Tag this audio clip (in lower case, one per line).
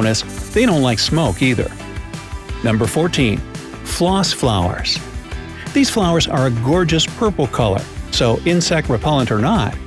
mosquito buzzing